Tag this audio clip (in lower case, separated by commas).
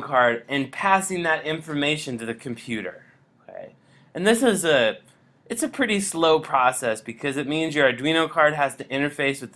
speech